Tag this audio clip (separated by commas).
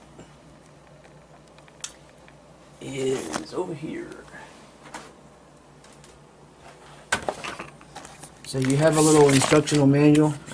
Speech